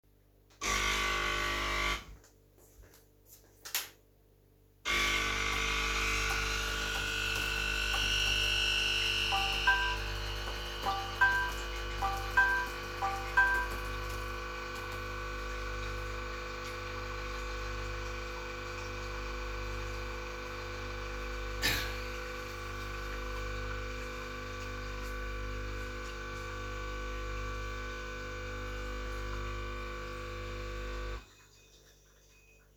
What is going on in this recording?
I switched the coffee machine on, put the pen on the table and started typing on the keyboard. At the same time I got bombarded with message notifications on the phone, so I stopped typing and checked what was going on and coughed afterwards.